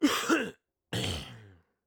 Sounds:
Cough, Respiratory sounds

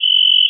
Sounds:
Cricket, Wild animals, Insect, Animal

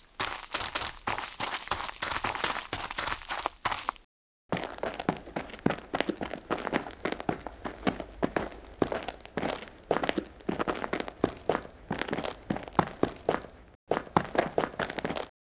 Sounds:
Run

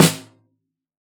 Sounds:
Snare drum, Musical instrument, Music, Drum, Percussion

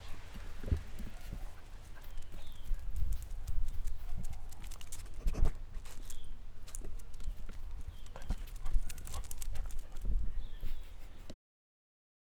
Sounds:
Animal, pets, Dog

